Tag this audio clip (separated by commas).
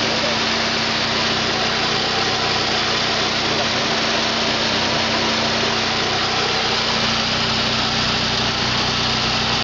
Engine, Idling, Speech, Medium engine (mid frequency)